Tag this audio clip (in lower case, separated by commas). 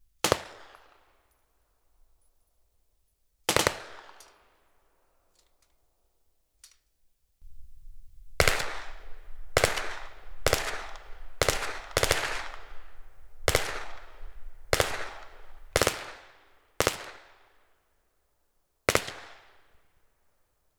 gunfire, explosion